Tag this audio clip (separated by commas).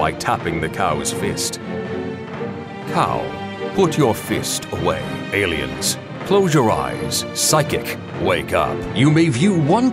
Music, Speech